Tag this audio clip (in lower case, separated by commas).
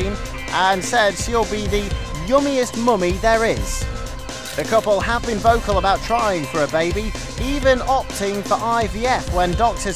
music, speech